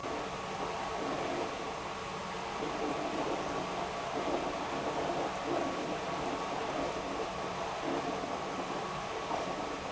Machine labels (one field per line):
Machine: pump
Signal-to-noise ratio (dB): 0 dB